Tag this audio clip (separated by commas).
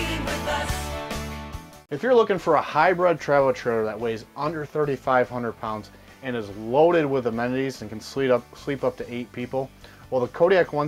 Speech, Music